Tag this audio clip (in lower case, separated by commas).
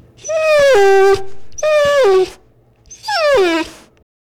dog, animal, pets